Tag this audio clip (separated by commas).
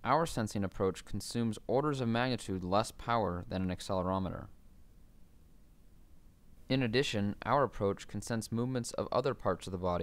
Speech